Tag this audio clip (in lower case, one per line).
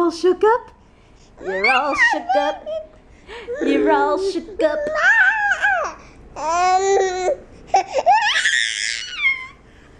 child speech
babbling
people babbling